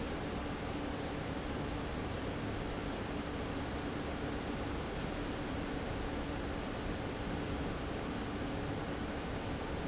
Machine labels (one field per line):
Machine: fan